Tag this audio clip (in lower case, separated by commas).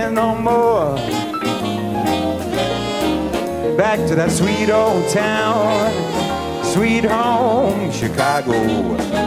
saxophone, orchestra, jazz, brass instrument, musical instrument, singing, music, trombone, trumpet